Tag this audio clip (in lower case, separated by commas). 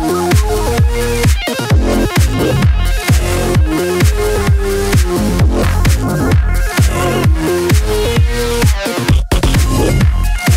house music, music, dubstep, electronic music